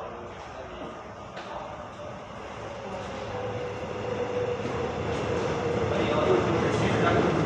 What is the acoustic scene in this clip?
subway station